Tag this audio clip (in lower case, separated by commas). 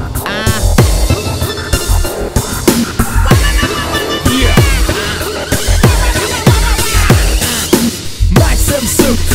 music